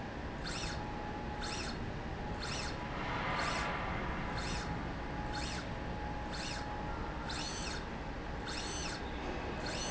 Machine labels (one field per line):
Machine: slide rail